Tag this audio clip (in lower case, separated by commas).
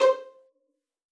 bowed string instrument, music, musical instrument